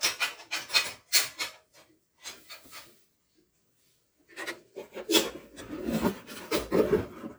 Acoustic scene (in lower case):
kitchen